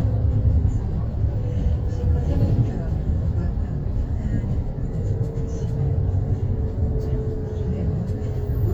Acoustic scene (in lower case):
bus